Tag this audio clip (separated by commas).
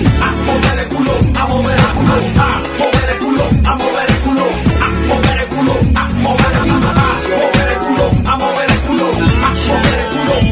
Music